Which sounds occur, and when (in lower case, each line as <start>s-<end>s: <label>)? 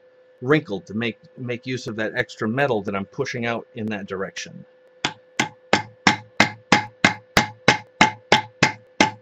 0.0s-9.2s: mechanisms
0.4s-1.2s: man speaking
1.4s-4.6s: man speaking
3.8s-3.9s: generic impact sounds
4.8s-4.9s: generic impact sounds
5.0s-5.2s: hammer
5.4s-5.5s: hammer
5.7s-5.8s: hammer
6.0s-6.2s: hammer
6.4s-6.5s: hammer
6.7s-6.9s: hammer
7.0s-7.2s: hammer
7.3s-7.5s: hammer
7.7s-7.8s: hammer
7.8s-7.9s: generic impact sounds
8.0s-8.1s: hammer
8.3s-8.5s: hammer
8.6s-8.7s: hammer
8.8s-8.9s: generic impact sounds
9.0s-9.1s: hammer